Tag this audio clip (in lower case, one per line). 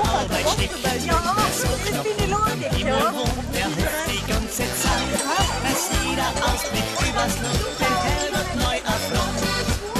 speech
music